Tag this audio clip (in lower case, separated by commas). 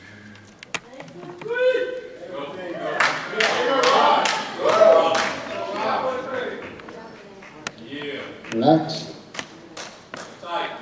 speech